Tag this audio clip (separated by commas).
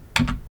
home sounds, Typing